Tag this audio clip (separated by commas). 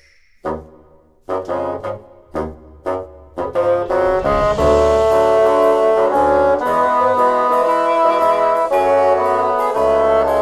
playing bassoon